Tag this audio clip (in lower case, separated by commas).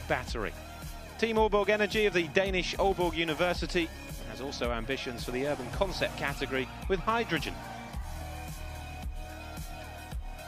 music, speech